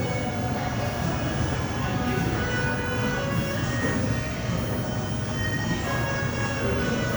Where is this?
in a cafe